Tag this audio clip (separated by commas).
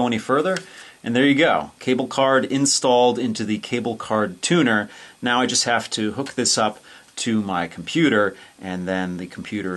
Speech